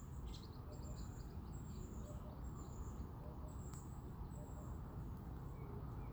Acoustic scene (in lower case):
park